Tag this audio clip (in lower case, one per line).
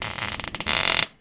tools